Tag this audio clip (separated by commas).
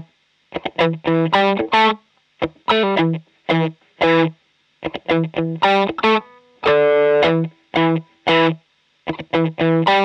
Musical instrument, Electric guitar, Guitar, Music